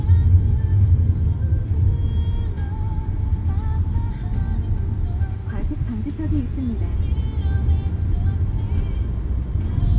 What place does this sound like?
car